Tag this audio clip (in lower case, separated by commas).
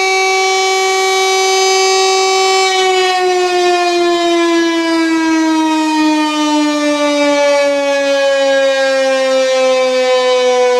siren